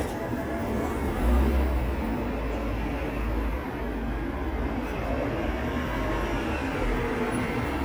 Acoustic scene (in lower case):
street